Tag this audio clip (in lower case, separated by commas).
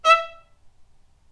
musical instrument, music, bowed string instrument